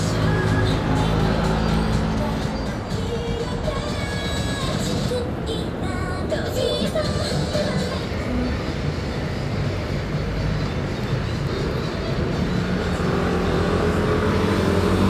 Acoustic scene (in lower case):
street